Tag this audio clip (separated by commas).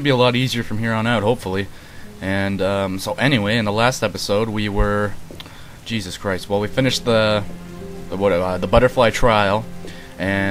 Speech, Music